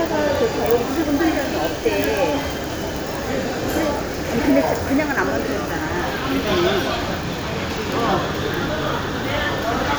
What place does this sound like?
restaurant